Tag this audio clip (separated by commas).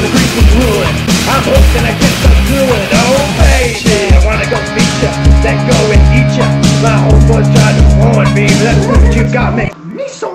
Music